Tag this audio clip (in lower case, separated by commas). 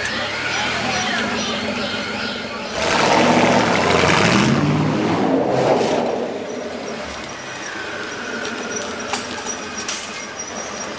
outside, urban or man-made, speech